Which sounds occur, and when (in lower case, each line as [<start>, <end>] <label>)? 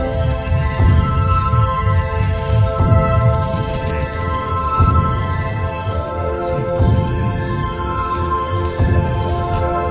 [0.00, 9.90] music
[3.25, 4.35] generic impact sounds